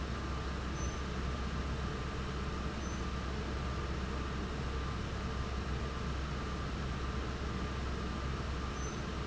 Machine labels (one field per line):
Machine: fan